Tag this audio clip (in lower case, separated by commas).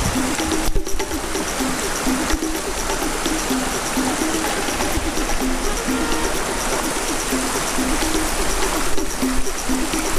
rowboat, music, kayak rowing